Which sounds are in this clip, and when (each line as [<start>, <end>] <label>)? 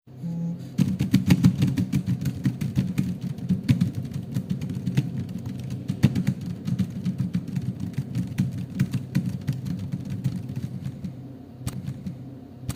[0.00, 0.76] phone ringing
[0.60, 12.71] keyboard typing